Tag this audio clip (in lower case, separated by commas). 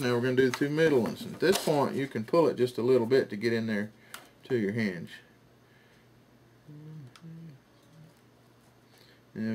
inside a small room, speech